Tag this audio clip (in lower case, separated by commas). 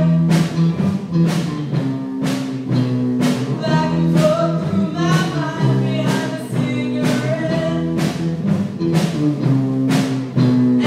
music, female singing